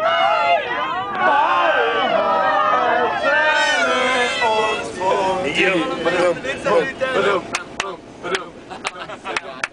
A group of people are singing